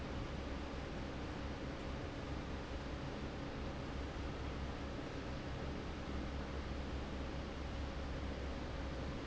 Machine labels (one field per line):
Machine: fan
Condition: normal